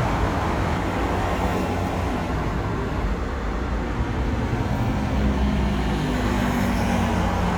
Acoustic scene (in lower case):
street